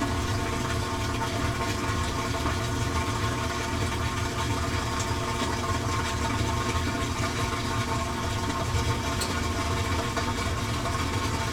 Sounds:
Engine

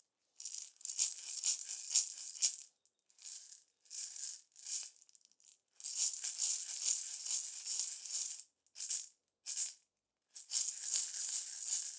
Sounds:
Music, Musical instrument, Rattle (instrument), Percussion

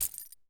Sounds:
Keys jangling, home sounds

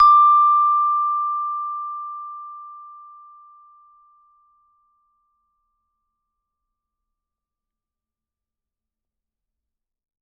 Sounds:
Mallet percussion, Musical instrument, Music, Percussion

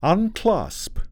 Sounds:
Speech, Male speech, Human voice

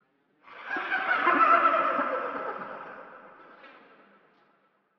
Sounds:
Human voice, Laughter

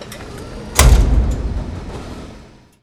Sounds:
Door, Domestic sounds

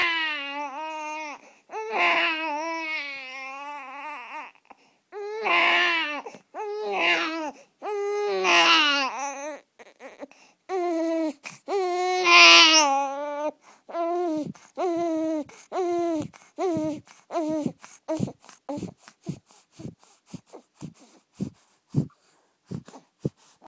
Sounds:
sobbing, Human voice

